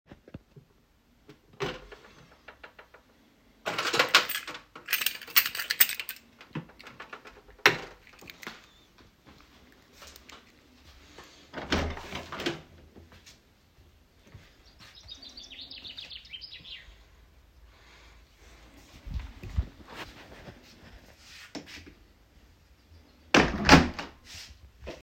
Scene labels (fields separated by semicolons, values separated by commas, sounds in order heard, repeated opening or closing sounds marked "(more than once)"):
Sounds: wardrobe or drawer (more than once), keys, door (more than once)